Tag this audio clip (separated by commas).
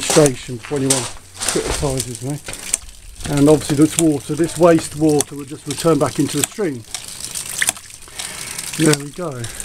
Water